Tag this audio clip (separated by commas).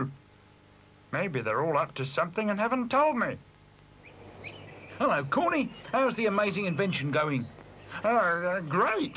Environmental noise